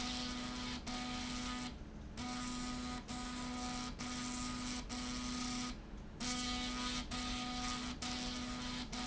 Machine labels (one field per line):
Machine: slide rail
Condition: abnormal